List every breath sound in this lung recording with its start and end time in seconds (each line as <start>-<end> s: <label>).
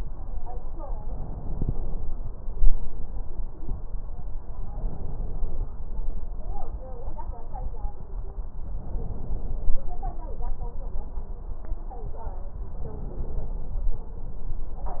0.97-1.98 s: crackles
0.99-1.97 s: inhalation
4.72-5.70 s: inhalation
8.77-9.75 s: inhalation
12.80-13.78 s: inhalation